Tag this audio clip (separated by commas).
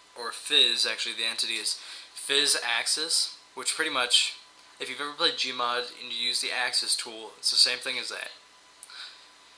Speech